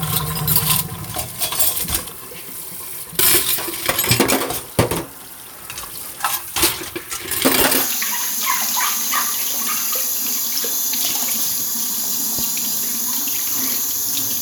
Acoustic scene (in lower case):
kitchen